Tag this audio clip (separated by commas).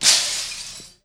Glass, Shatter